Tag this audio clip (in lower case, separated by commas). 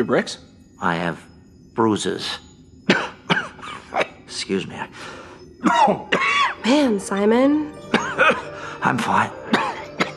speech, music